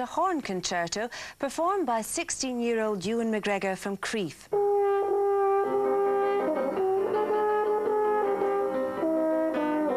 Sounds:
playing french horn

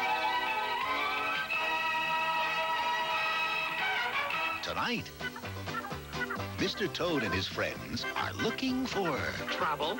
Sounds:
music, speech

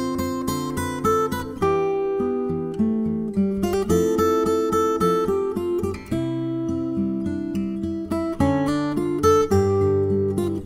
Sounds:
plucked string instrument, guitar, music

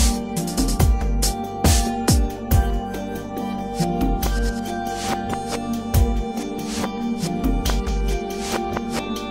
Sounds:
music

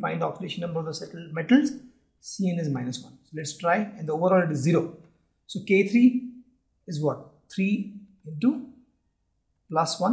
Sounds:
speech

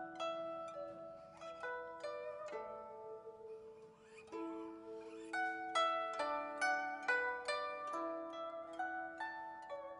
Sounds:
music

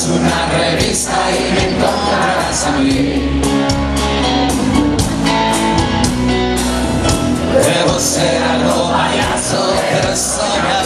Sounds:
music

